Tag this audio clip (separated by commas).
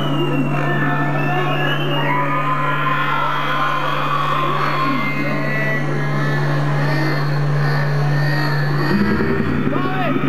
Music, Speech